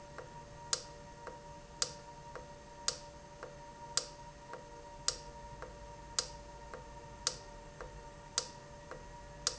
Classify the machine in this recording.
valve